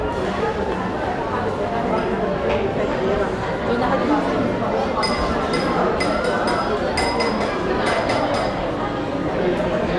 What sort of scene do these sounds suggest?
crowded indoor space